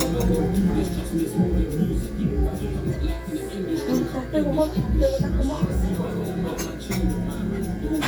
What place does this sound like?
restaurant